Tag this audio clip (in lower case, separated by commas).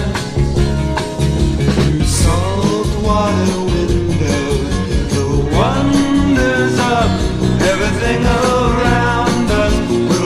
music, psychedelic rock